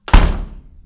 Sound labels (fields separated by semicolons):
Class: door; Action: closing; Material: wooden